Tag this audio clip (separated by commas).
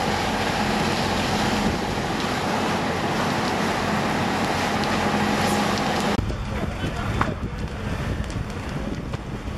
Fire, Speech